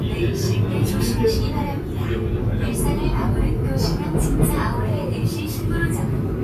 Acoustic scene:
subway train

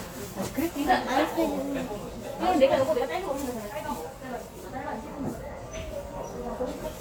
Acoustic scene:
cafe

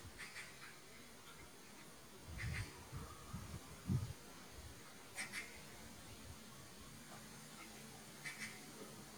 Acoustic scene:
park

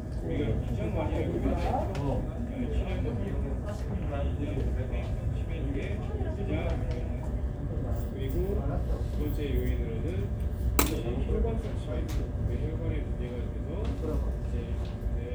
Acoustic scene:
crowded indoor space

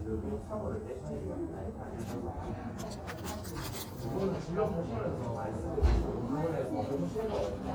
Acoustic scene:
crowded indoor space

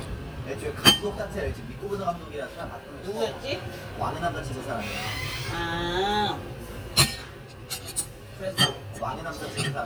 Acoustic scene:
restaurant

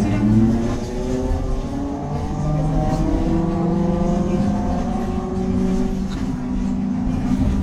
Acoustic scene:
bus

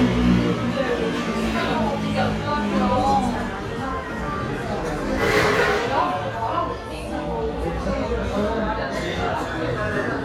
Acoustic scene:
cafe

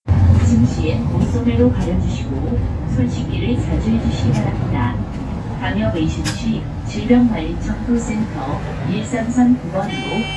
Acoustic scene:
bus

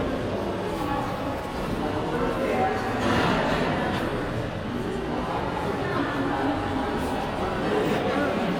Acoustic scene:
crowded indoor space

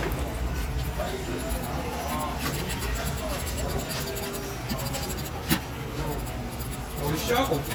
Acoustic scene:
crowded indoor space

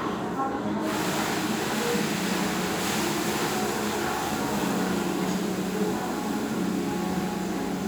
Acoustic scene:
restaurant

